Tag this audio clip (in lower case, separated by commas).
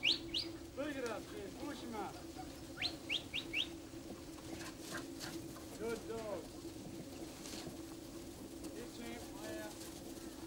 bird call, bird, chirp